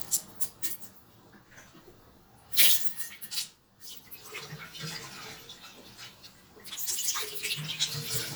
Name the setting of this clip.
restroom